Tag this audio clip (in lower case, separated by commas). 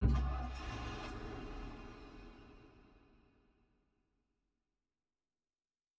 engine, vehicle